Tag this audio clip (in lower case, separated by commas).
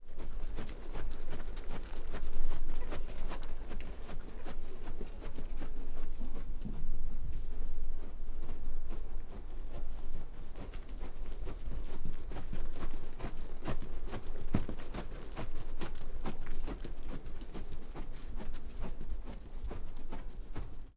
livestock, animal